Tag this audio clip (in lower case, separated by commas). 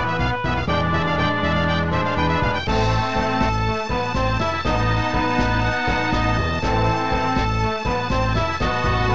exciting music, music